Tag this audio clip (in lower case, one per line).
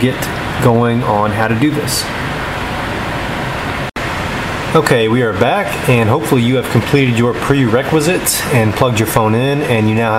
speech